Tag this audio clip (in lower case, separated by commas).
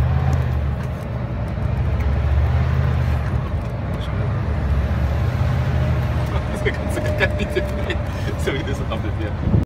speech, vehicle